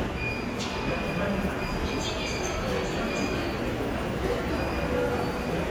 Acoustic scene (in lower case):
subway station